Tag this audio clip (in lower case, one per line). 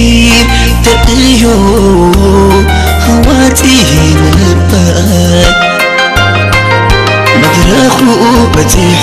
music